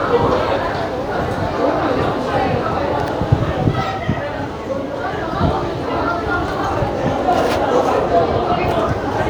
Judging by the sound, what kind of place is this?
subway station